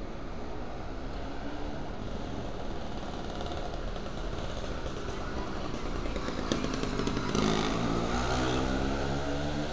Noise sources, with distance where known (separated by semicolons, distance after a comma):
small-sounding engine, near; unidentified human voice